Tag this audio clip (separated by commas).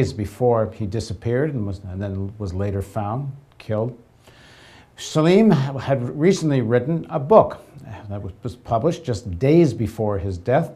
Speech